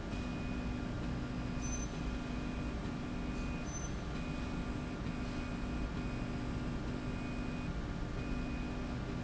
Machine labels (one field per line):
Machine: slide rail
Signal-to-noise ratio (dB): -6 dB